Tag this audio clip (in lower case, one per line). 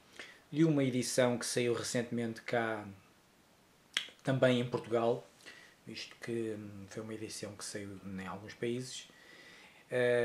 speech